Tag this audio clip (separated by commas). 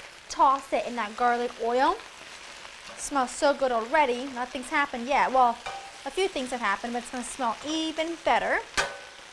Sizzle, Frying (food)